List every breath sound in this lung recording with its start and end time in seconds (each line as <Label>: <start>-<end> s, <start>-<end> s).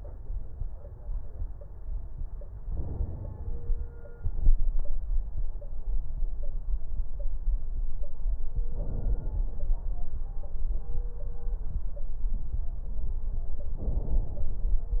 Inhalation: 2.63-4.13 s, 8.64-10.14 s, 13.82-15.00 s